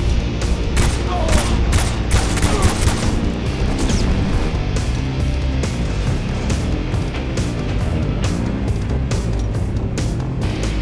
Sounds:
Fusillade, Music

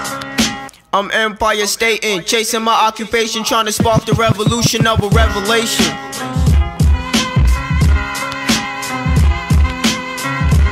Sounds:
Music

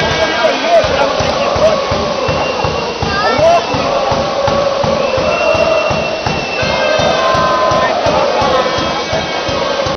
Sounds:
Rain on surface, Music, Speech

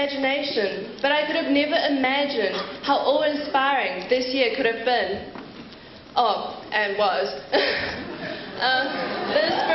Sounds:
Female speech, Speech, Narration

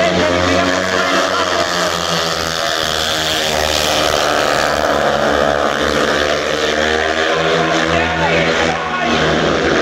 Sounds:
Speech

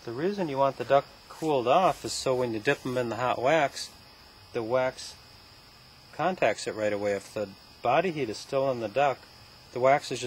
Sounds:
Speech

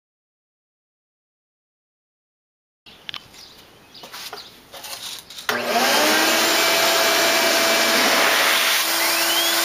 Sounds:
Engine

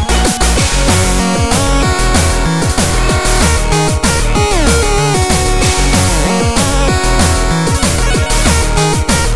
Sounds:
Music

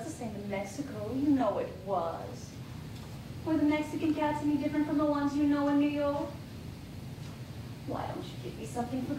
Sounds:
Speech

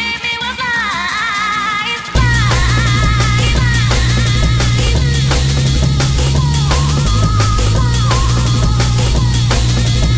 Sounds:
Music

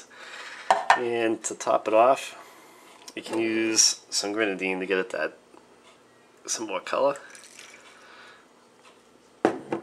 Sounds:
Speech, inside a small room

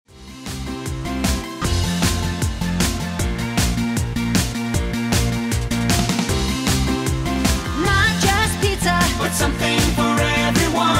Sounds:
Jingle (music)

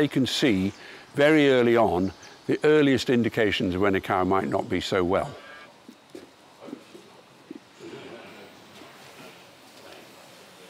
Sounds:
cattle mooing

